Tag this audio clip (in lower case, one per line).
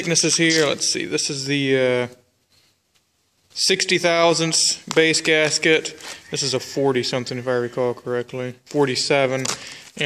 speech